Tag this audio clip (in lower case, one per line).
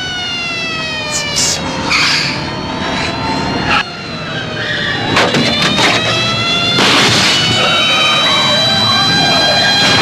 vehicle
car